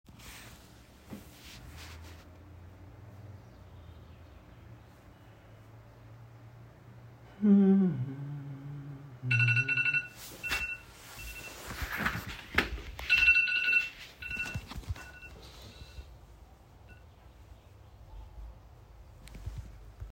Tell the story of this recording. I was humming and scrolling my phone. The alarm goes off. Then, I got off my chair and walk off to turn the alarm off.